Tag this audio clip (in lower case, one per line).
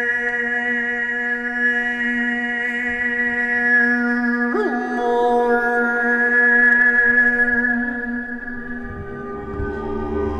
mantra